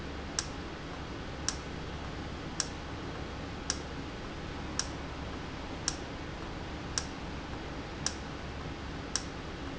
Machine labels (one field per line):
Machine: valve